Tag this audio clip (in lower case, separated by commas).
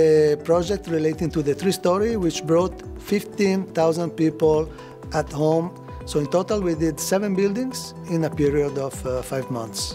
music, speech